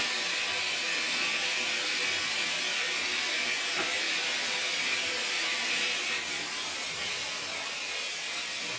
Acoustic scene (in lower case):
restroom